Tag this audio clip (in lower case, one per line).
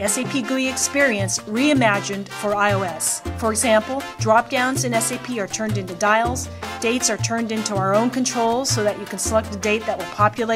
music
speech